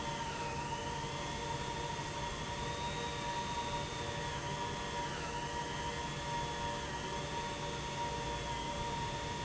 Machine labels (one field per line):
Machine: pump